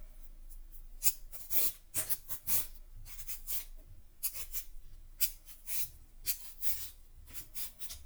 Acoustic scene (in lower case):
kitchen